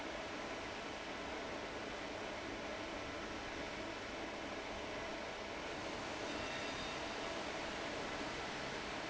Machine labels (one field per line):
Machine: fan